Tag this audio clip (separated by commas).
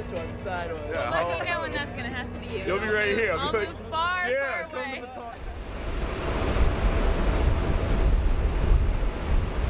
Wind, Waves, Wind noise (microphone), Ocean